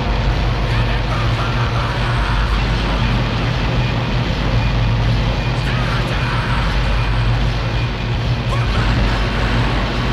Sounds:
Speech, Music

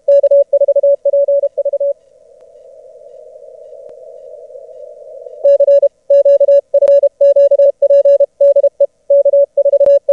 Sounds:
Radio

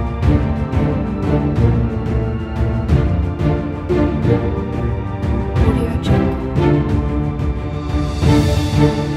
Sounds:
Music, Background music, Speech

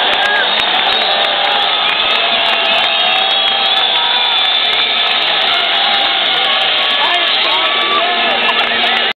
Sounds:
Speech

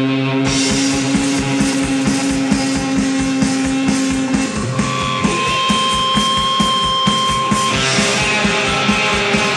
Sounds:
Music, Heavy metal

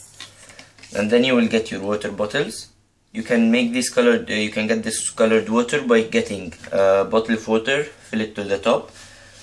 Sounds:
Speech

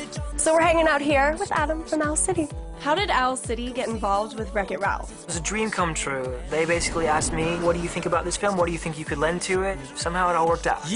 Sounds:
Speech, Music

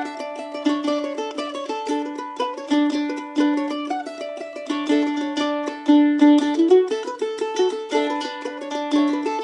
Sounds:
Music, Musical instrument

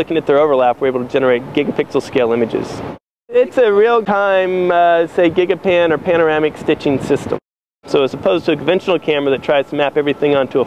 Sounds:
Speech

